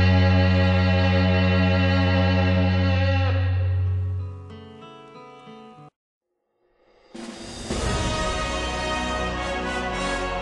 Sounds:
Music

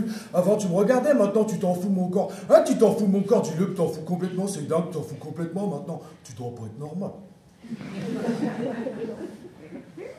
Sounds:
Speech

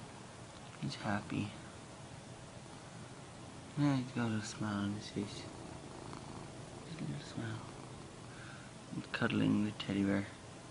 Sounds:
Speech

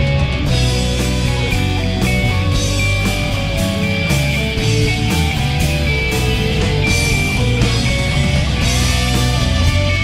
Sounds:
Progressive rock, Music, Guitar, Musical instrument

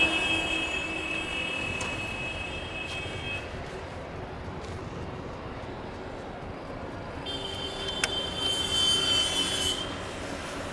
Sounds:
footsteps

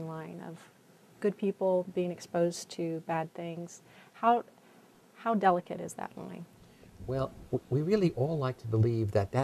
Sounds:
inside a small room, Speech

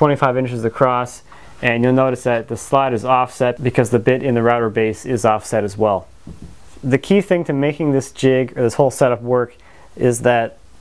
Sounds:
planing timber

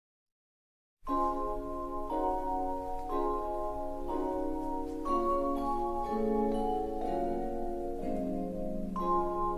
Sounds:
Music, Vibraphone

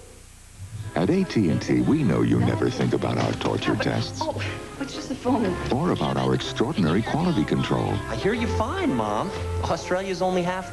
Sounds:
Music, Speech

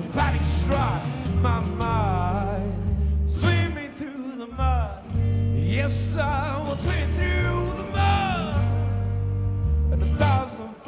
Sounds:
Music

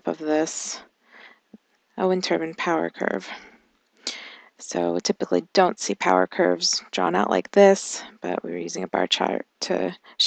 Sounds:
Speech

